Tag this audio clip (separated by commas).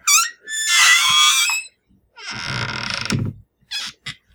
Squeak